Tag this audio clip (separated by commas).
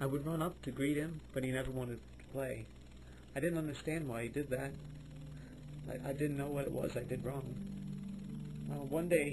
Music, Speech